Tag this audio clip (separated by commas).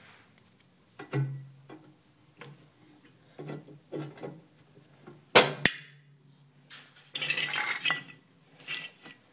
inside a small room